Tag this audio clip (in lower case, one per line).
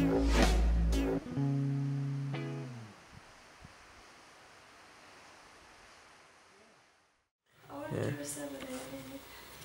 music
inside a small room
speech